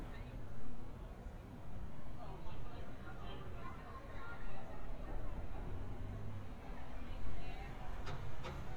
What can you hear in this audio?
non-machinery impact, person or small group talking